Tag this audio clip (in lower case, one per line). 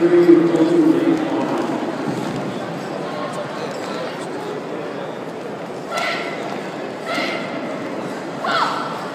whip